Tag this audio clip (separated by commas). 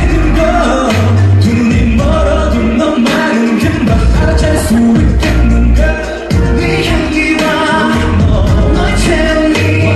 Music